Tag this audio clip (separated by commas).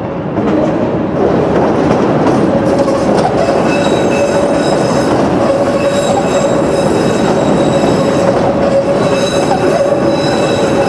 outside, urban or man-made, Train wheels squealing, Train, Vehicle